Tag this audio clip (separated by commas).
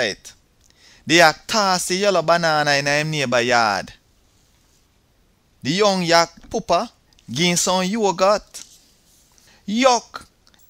Speech